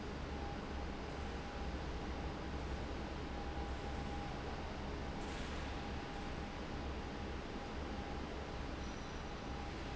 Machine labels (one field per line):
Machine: fan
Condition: abnormal